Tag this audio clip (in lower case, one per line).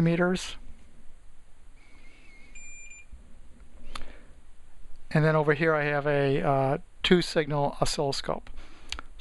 speech
bleep